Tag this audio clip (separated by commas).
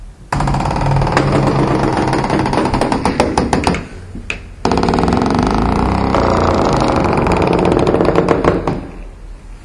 Squeak, Door, Domestic sounds